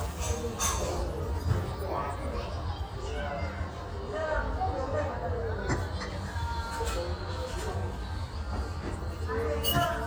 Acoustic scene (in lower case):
restaurant